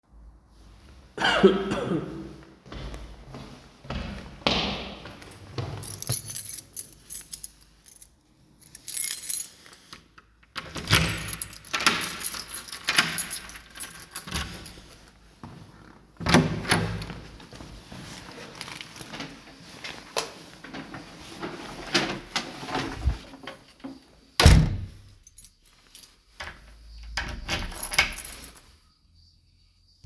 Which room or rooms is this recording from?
hallway